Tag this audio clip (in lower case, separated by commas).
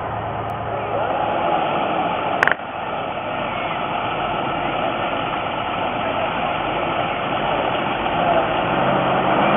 truck, vehicle